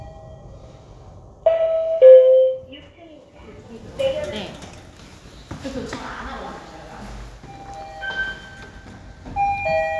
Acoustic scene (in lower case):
elevator